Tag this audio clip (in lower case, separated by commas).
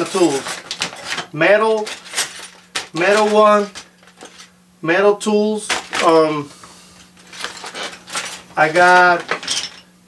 tools, speech